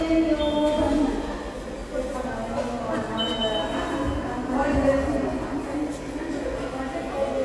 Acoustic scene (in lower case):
subway station